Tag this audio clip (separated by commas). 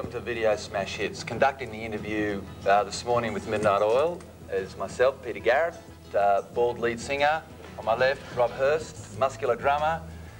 Speech, Music